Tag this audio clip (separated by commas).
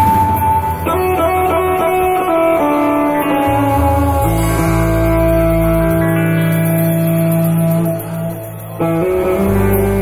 Musical instrument, Music, Strum, Guitar, Plucked string instrument